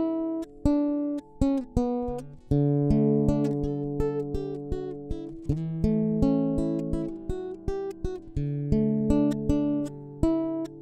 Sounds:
music, electronic tuner

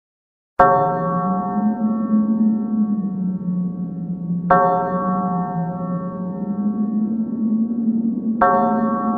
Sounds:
sound effect, bell

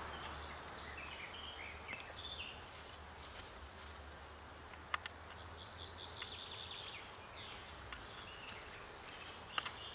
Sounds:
environmental noise, animal

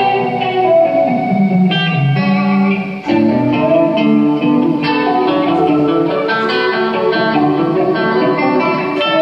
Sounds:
music

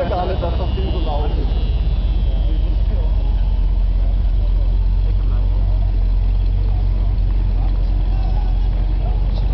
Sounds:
speech, engine

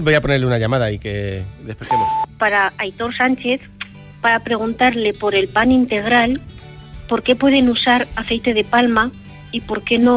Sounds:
speech, radio, music

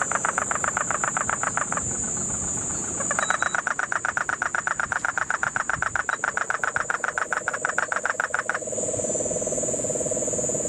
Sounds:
frog croaking

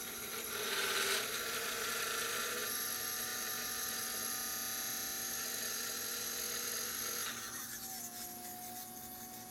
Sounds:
inside a small room

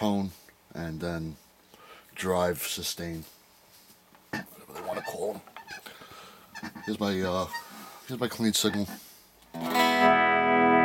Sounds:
music, guitar, speech, musical instrument

